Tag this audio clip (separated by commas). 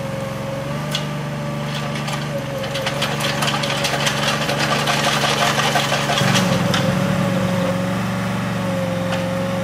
Vehicle, lawn mowing, Lawn mower